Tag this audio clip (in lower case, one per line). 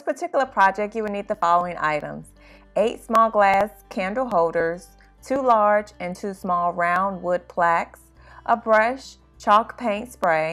music
speech